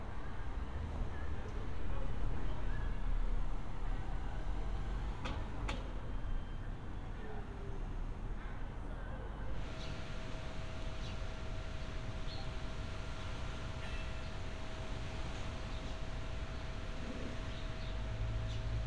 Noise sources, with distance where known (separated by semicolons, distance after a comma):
background noise